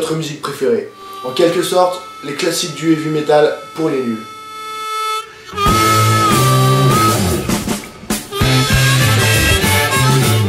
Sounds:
music, speech

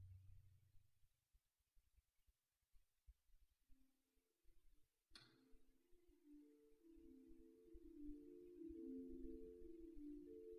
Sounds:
music, vibraphone, musical instrument, marimba

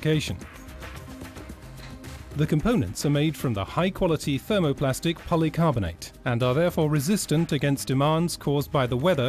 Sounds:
speech, music

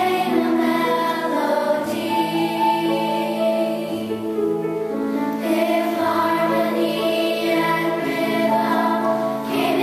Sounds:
soul music, music

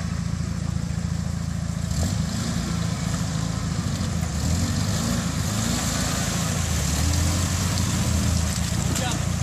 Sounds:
truck, vehicle, speech

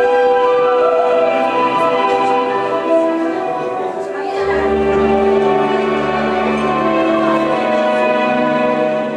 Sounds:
musical instrument, music, violin

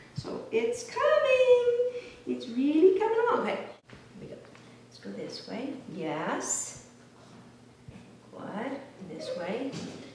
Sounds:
speech

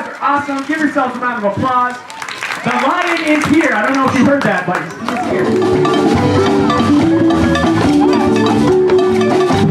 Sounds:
percussion, music, speech

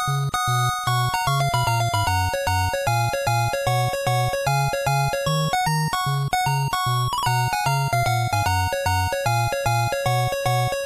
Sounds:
music

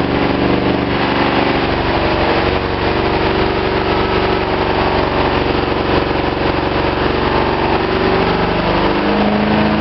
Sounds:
engine

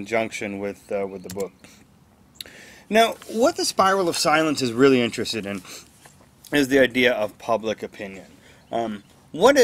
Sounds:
speech

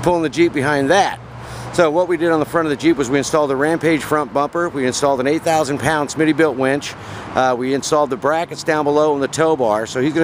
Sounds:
speech

